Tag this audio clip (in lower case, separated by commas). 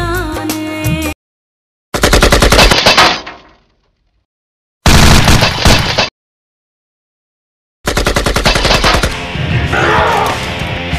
machine gun